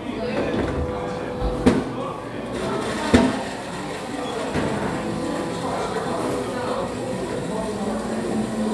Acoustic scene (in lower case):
cafe